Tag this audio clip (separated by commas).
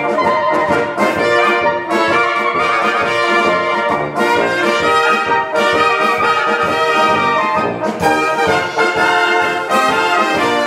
Brass instrument, Clarinet, Trumpet